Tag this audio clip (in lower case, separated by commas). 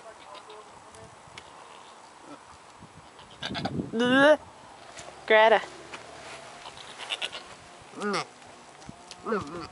bleat, sheep, speech